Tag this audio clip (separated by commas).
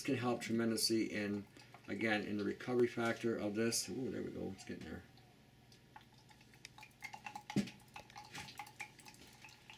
Speech